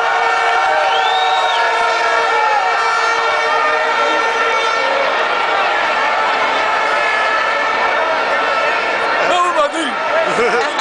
A crowd cheers while a horn is blowing